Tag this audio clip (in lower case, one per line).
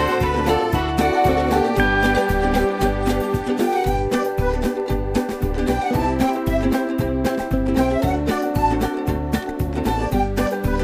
music